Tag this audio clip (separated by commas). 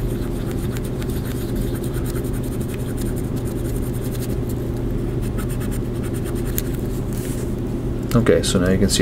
Speech